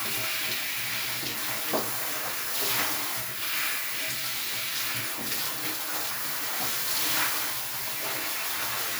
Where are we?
in a restroom